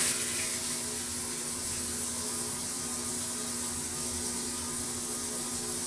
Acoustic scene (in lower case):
restroom